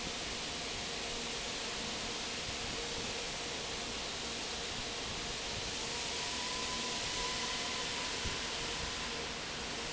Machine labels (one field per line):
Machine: fan